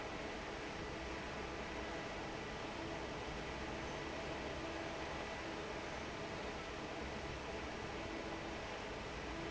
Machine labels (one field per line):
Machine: fan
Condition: normal